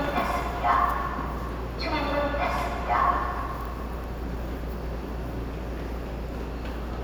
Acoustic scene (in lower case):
subway station